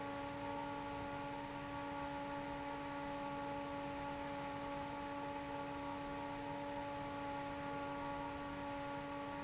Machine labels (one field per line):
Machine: fan